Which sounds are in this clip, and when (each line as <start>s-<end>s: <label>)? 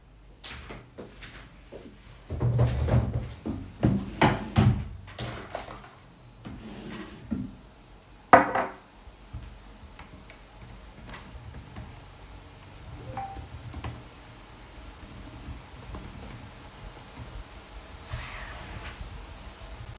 3.3s-3.7s: footsteps
4.6s-4.8s: wardrobe or drawer
6.2s-8.0s: wardrobe or drawer
10.6s-18.1s: keyboard typing
13.0s-13.5s: phone ringing